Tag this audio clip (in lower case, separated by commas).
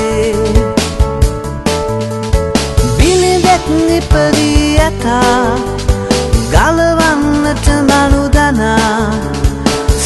singing, music, christian music, christmas music